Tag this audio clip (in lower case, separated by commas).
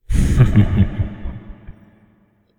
laughter, human voice